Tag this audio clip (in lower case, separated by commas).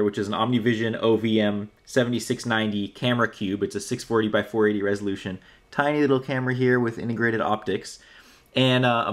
speech